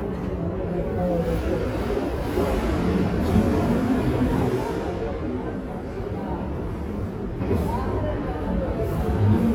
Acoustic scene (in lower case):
crowded indoor space